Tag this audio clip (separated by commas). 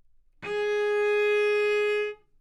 Music, Musical instrument, Bowed string instrument